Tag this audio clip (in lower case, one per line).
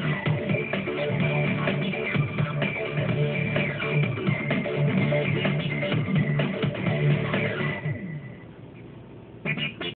music